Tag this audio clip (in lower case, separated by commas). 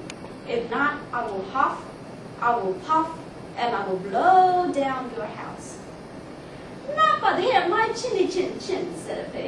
speech, monologue, female speech